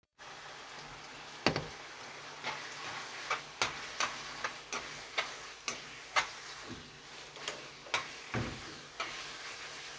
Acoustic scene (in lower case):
kitchen